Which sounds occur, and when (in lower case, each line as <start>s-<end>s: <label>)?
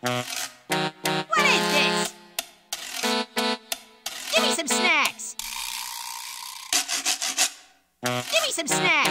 0.0s-5.4s: music
0.0s-9.1s: video game sound
1.3s-2.0s: woman speaking
4.3s-5.1s: woman speaking
5.4s-6.7s: sound effect
6.7s-7.5s: sanding
8.0s-9.1s: music
8.3s-9.1s: woman speaking